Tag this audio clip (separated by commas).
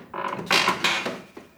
Squeak